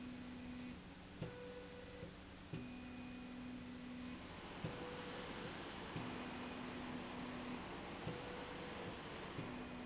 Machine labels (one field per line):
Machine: slide rail